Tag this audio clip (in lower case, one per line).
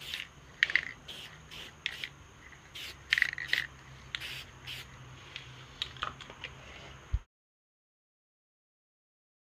spray